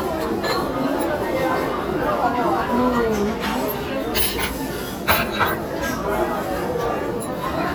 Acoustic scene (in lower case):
crowded indoor space